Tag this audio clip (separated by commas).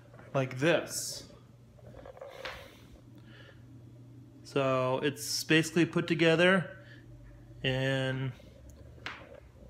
Speech